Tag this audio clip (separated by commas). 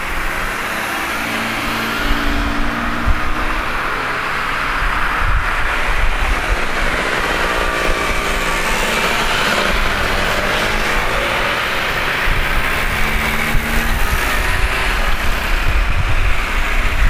roadway noise, Motor vehicle (road), Vehicle